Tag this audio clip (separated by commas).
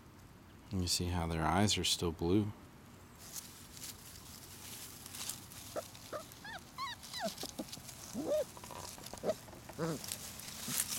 Speech, pets, Animal, Dog, outside, rural or natural, canids